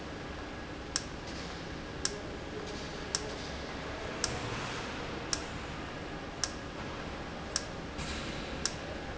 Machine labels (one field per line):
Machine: valve